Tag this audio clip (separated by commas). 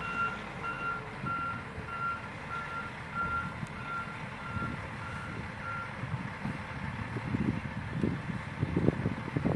Reversing beeps, Vehicle, Truck